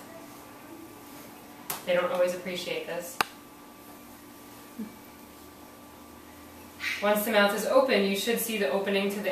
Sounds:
inside a small room, speech

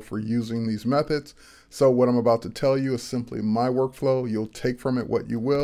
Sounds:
speech

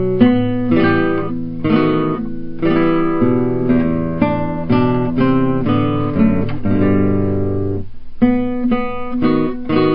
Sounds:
guitar, music, acoustic guitar, musical instrument, electric guitar, strum

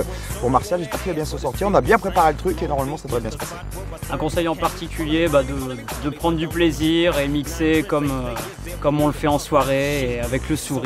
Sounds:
speech, music

